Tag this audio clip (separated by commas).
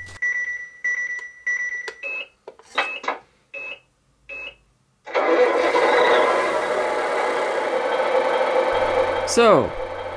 Speech, inside a small room